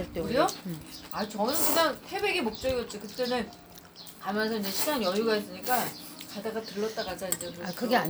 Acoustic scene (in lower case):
restaurant